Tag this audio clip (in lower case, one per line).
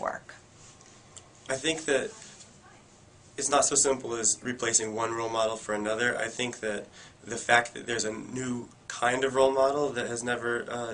speech
inside a small room